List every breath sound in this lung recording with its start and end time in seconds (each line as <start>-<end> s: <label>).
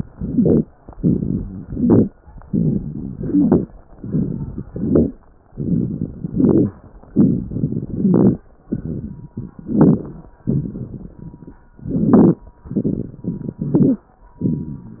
0.11-0.67 s: inhalation
0.11-0.67 s: crackles
0.97-1.60 s: exhalation
0.97-1.60 s: crackles
1.63-2.13 s: inhalation
1.63-2.13 s: crackles
2.45-3.13 s: exhalation
2.45-3.13 s: crackles
3.17-3.66 s: inhalation
3.17-3.66 s: crackles
3.92-4.61 s: exhalation
3.92-4.61 s: crackles
4.69-5.18 s: inhalation
4.69-5.18 s: crackles
5.53-6.26 s: exhalation
5.53-6.26 s: crackles
6.32-6.74 s: inhalation
6.32-6.74 s: crackles
7.14-7.87 s: exhalation
7.14-7.87 s: crackles
7.91-8.39 s: inhalation
7.91-8.39 s: crackles
8.72-9.58 s: exhalation
8.72-9.58 s: crackles
9.62-10.30 s: inhalation
9.62-10.30 s: crackles
10.46-11.59 s: exhalation
10.46-11.59 s: crackles
11.82-12.43 s: inhalation
11.82-12.43 s: crackles
12.69-13.58 s: exhalation
12.69-13.58 s: crackles
13.62-14.04 s: inhalation
13.62-14.04 s: crackles
14.42-15.00 s: exhalation
14.42-15.00 s: crackles